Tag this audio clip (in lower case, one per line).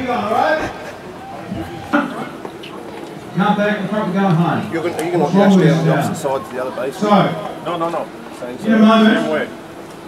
speech